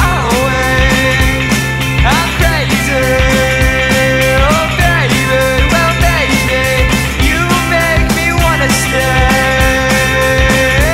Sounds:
music

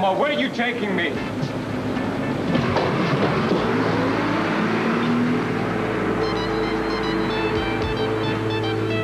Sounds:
music, speech

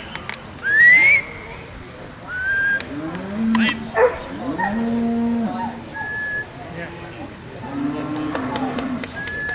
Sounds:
animal, speech, whimper (dog), bow-wow, dog, yip, domestic animals

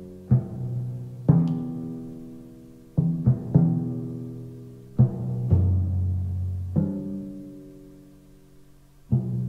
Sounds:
playing tympani

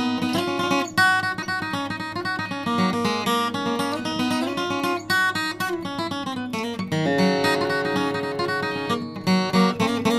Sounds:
musical instrument, plucked string instrument, acoustic guitar, music, strum, guitar

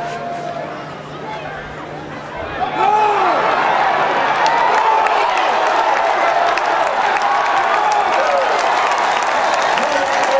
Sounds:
speech

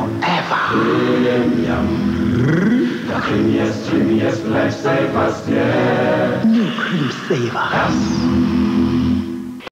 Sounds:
music, speech

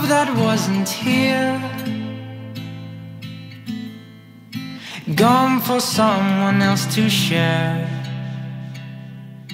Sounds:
singing, guitar

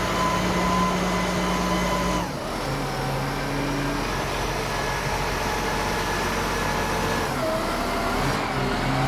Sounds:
vehicle, truck

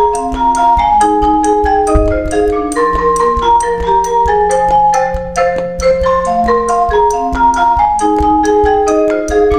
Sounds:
music

